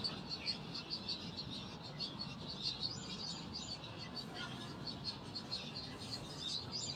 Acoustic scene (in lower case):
park